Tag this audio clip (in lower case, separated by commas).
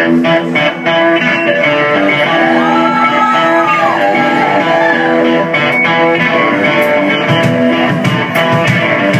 guitar, acoustic guitar, musical instrument, plucked string instrument, music